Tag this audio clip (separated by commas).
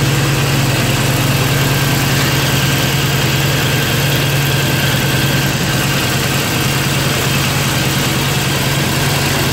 Vehicle